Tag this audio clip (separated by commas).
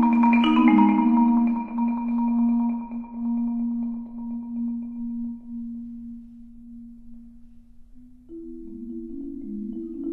xylophone, Music, Musical instrument, Percussion